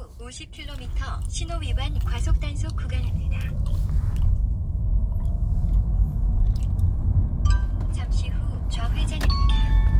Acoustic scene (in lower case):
car